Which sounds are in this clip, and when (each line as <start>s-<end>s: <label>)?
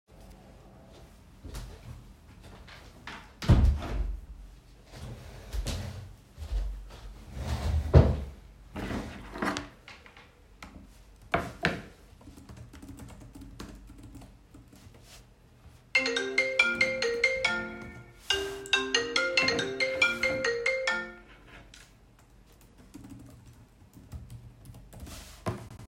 3.0s-4.3s: window
12.4s-17.7s: keyboard typing
15.9s-21.3s: phone ringing
21.7s-21.9s: phone ringing
22.3s-25.9s: keyboard typing